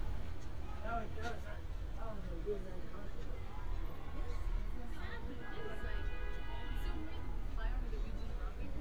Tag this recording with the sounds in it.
car horn, person or small group talking